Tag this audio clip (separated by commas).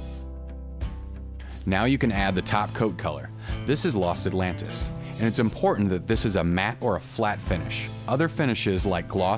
Speech, Music